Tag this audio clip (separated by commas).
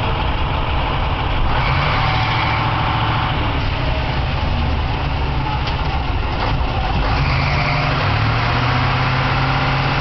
Medium engine (mid frequency), Vehicle, Truck, Car